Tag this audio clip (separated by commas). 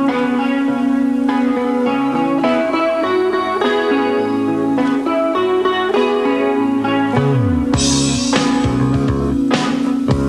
Music